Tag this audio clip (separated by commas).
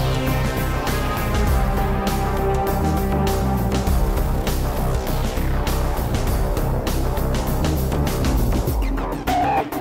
Music